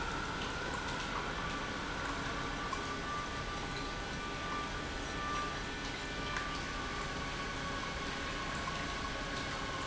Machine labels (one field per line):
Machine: pump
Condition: normal